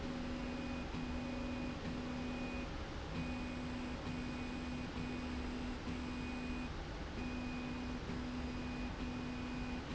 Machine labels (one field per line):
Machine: slide rail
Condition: normal